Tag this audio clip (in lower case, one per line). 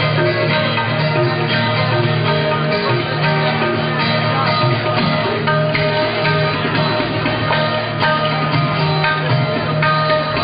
musical instrument
music
guitar
acoustic guitar
plucked string instrument
classical music